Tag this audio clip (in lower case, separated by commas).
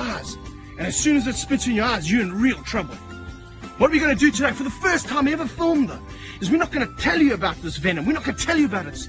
speech, music